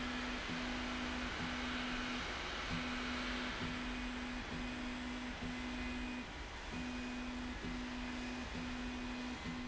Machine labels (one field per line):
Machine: slide rail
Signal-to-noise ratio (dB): 0 dB